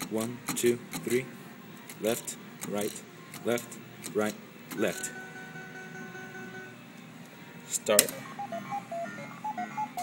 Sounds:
music, speech

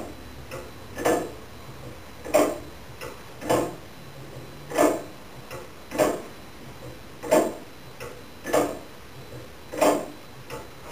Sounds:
tick-tock

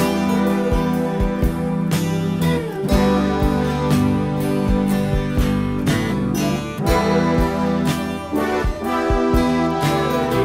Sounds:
music

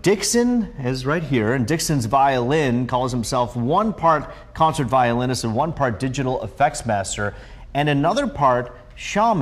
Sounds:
speech

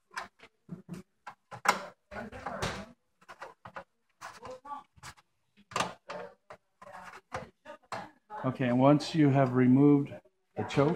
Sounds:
speech

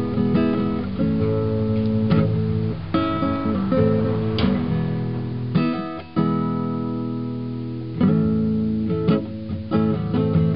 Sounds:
musical instrument, music, plucked string instrument, strum, guitar

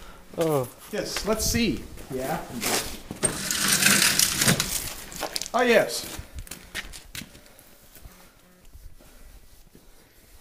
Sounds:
speech

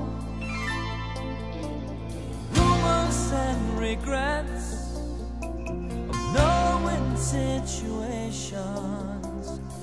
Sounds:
music

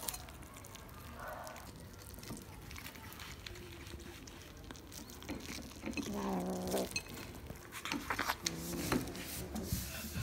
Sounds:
cat growling

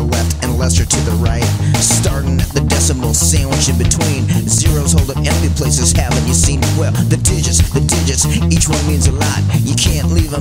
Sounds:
music, rock and roll

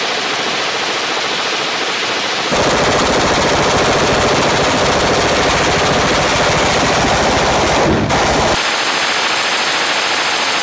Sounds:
machine gun shooting

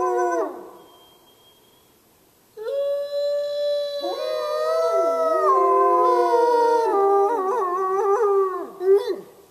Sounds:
domestic animals, canids, animal, howl

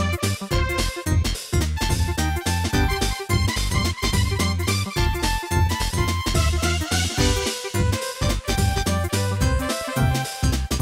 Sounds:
video game music, music

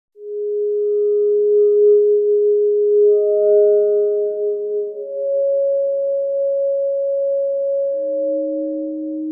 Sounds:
music

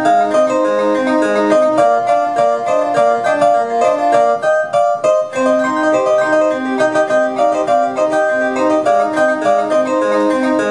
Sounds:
playing harpsichord, music, harpsichord

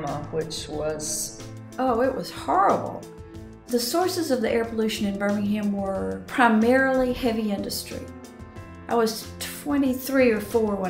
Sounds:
speech, music

